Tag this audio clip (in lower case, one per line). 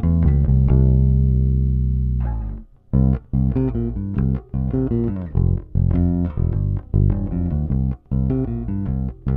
music